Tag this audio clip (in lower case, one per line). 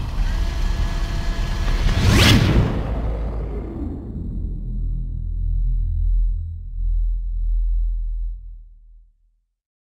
sampler
music